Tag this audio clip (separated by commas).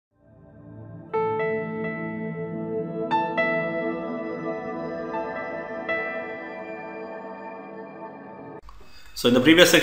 New-age music